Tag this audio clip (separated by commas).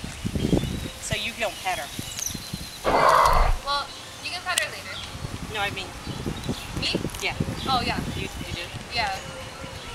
Wild animals, Animal, roaring cats, Speech